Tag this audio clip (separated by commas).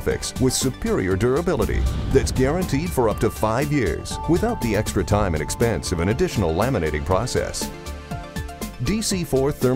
Speech, Music